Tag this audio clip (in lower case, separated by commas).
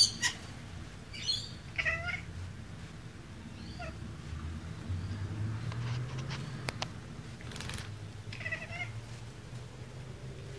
pets, cat caterwauling, cat, caterwaul, bird vocalization, animal